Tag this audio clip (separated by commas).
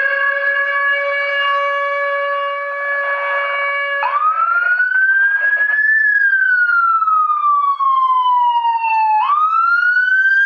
Siren